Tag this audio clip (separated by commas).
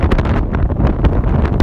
Wind